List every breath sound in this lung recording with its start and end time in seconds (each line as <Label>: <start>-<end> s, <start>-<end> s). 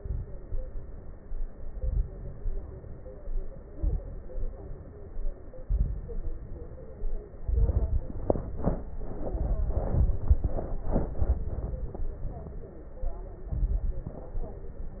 Inhalation: 1.58-2.30 s, 3.71-4.08 s, 5.66-6.33 s, 7.43-8.09 s, 13.51-14.14 s
Exhalation: 0.00-0.47 s, 2.32-3.15 s, 4.29-5.24 s, 6.37-7.24 s, 9.27-10.21 s, 14.18-15.00 s
Crackles: 0.00-0.47 s, 1.58-2.30 s, 2.32-3.15 s, 3.71-4.08 s, 5.66-6.33 s, 6.37-7.24 s, 7.43-8.09 s, 9.27-10.21 s, 13.51-14.14 s